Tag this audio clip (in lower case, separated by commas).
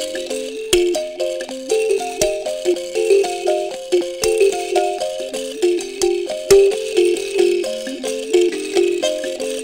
music, music of africa